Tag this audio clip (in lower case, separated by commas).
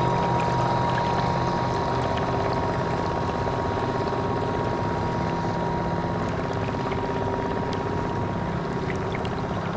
speedboat, speedboat acceleration, vehicle